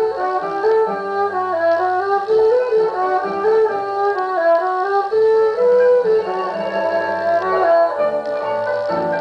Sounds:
playing erhu

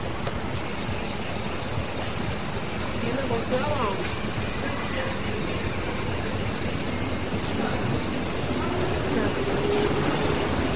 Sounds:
Speech

